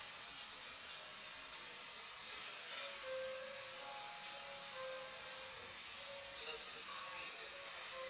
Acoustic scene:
cafe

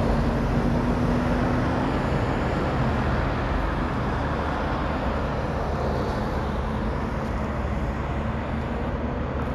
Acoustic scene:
street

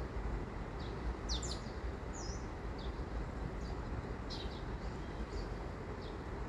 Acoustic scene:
park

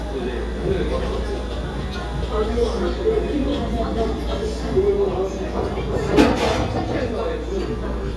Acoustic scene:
cafe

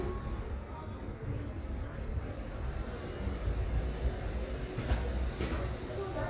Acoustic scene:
residential area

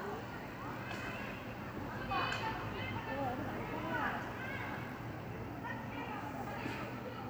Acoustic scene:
park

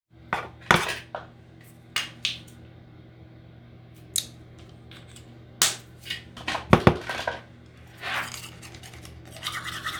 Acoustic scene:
restroom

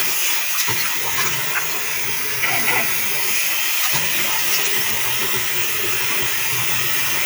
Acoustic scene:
restroom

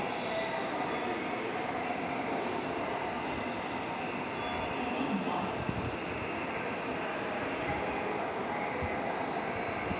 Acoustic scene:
subway station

